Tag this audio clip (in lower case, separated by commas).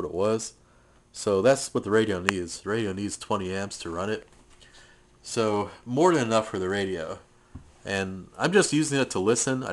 speech